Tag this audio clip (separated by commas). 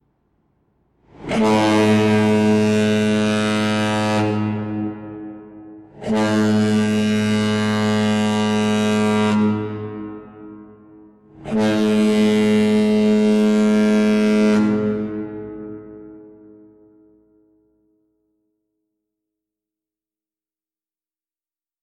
Boat, Vehicle